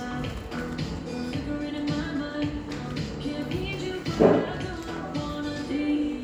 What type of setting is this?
cafe